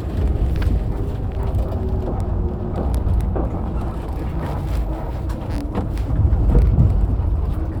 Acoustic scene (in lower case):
bus